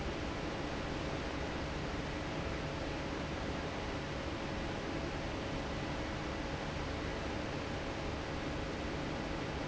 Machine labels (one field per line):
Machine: fan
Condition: normal